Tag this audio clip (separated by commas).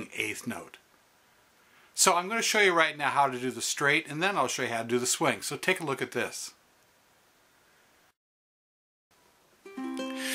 Speech, Ukulele, Strum, Music